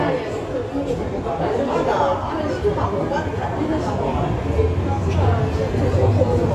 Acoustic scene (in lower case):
subway station